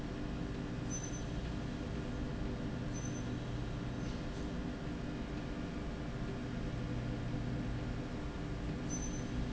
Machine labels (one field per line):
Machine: slide rail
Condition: normal